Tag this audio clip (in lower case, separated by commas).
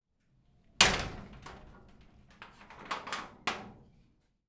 door, slam, domestic sounds